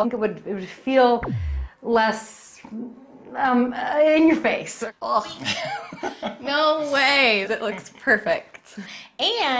A woman is speaking to another group and a man is laughing